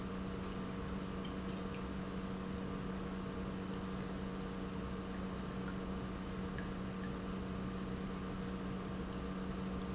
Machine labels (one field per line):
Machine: pump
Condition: normal